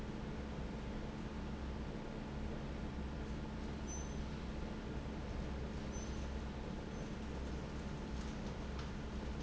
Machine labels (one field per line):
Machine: fan